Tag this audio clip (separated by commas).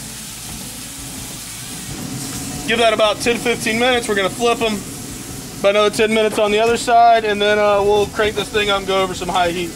outside, rural or natural, Speech